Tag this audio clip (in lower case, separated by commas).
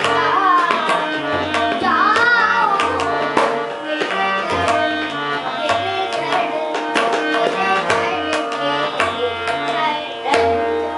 child singing